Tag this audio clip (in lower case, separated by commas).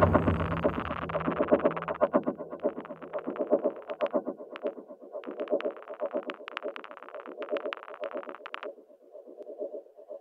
music, soundtrack music, background music